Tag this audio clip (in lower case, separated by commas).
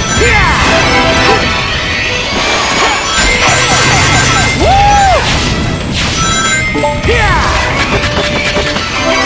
run, music